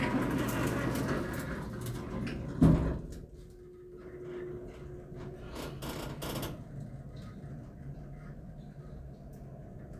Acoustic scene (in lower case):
elevator